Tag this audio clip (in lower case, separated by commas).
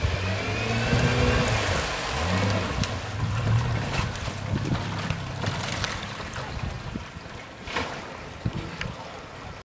sailing ship